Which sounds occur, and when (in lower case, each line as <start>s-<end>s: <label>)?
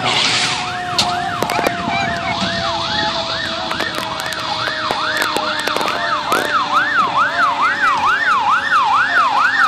0.0s-0.7s: air brake
0.0s-9.6s: fire engine
2.3s-9.6s: gush
2.9s-3.2s: beep
8.9s-9.5s: human voice